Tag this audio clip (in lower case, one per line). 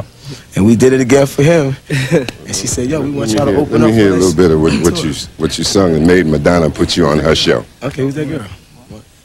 speech